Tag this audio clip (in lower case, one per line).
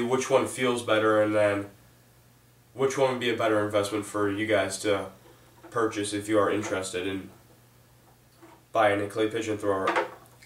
speech